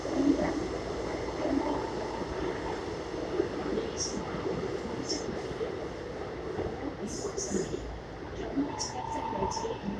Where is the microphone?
on a subway train